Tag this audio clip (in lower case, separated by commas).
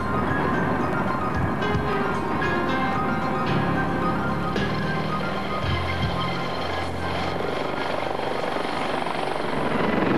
helicopter